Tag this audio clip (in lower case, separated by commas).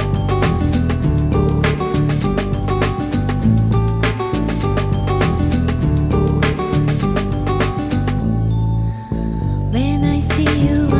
music, musical instrument